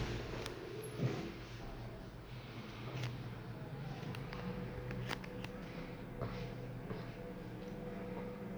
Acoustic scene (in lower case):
elevator